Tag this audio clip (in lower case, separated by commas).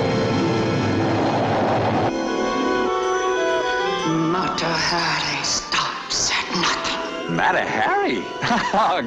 speech, music